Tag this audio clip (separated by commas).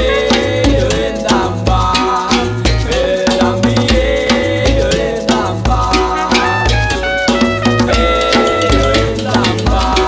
Percussion, Musical instrument, Music, Trumpet, Rattle (instrument), Drum